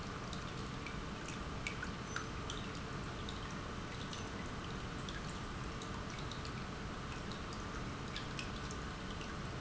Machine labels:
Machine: pump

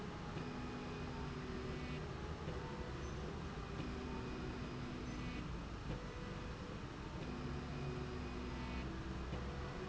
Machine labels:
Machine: slide rail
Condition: normal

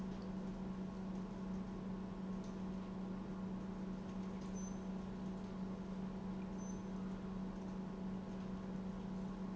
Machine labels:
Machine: pump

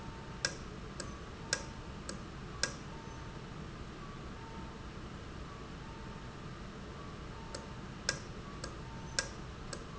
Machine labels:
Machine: valve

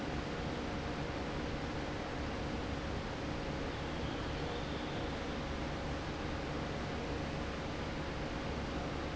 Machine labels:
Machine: fan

